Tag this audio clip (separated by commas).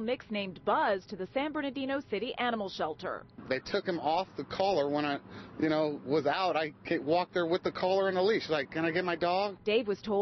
Speech